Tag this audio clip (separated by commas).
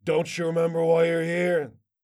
man speaking, Speech, Human voice